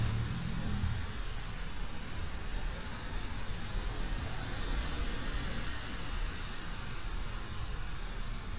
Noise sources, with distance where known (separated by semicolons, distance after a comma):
medium-sounding engine